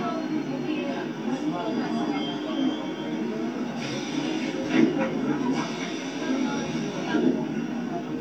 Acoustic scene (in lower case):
subway train